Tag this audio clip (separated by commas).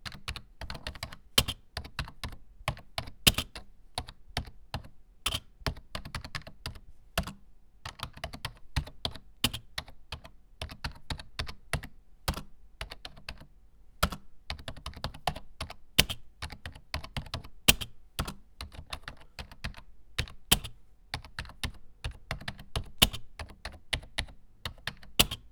Typing, home sounds